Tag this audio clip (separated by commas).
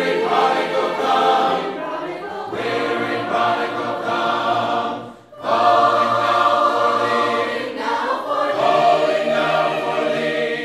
Choir, Male singing, Music, Female singing